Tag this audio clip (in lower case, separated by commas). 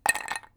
clink, glass